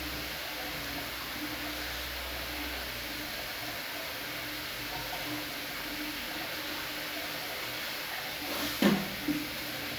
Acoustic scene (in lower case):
restroom